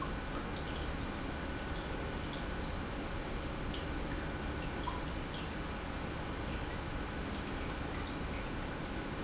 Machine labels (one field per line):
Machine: pump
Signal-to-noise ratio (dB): -6 dB